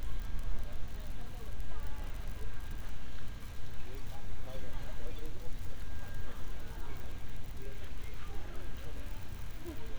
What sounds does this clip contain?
person or small group talking, unidentified human voice